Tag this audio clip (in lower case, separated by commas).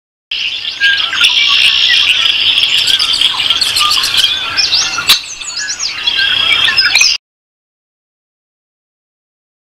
tweeting, chirp, outside, rural or natural